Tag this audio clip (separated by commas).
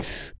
Breathing, Respiratory sounds